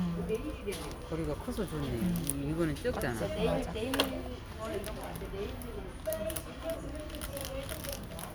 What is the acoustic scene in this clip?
crowded indoor space